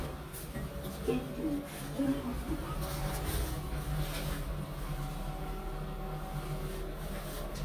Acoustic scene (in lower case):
elevator